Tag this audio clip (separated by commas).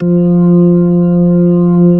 Musical instrument, Keyboard (musical), Organ, Music